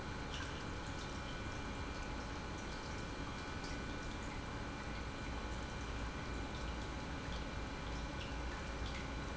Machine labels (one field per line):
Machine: pump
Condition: normal